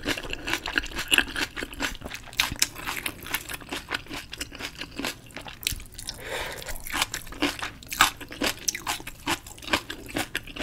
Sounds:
people slurping

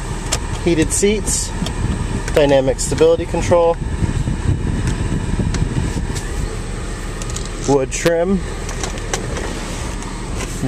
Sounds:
speech

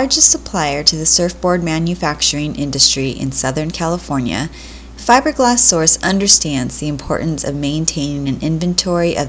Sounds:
speech

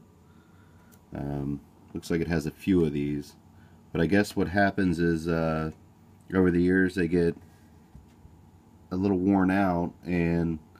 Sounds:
speech

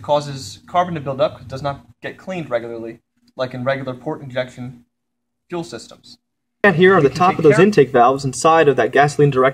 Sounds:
speech

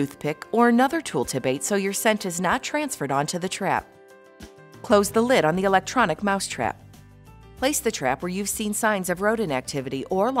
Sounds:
speech
music

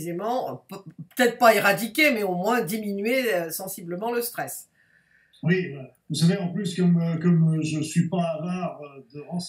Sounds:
speech

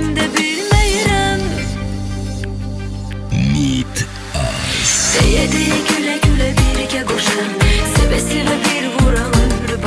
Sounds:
music

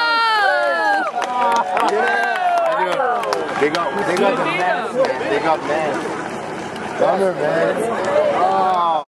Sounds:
speech

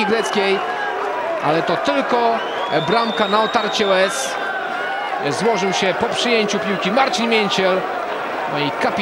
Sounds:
speech

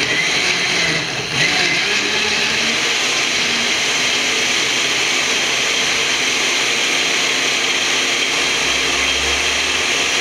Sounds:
blender

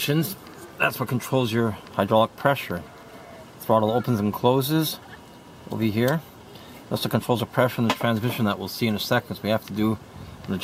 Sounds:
speech

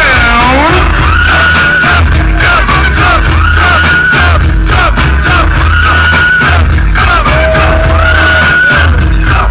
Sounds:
dance music
music

